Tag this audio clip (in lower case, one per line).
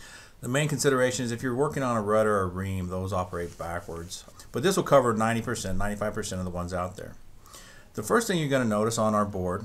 speech